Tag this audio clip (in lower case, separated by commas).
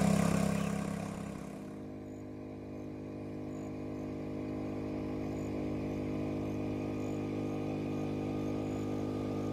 vehicle, boat